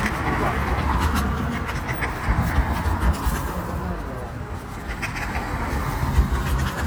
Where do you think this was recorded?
on a street